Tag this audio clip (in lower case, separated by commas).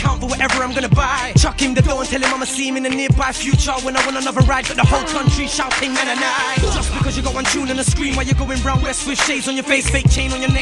music